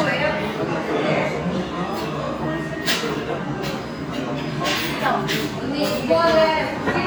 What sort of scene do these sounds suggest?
restaurant